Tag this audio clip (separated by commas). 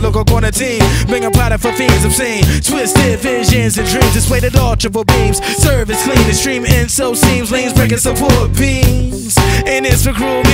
Music